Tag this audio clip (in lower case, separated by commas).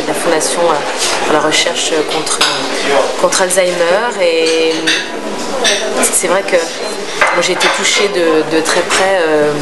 speech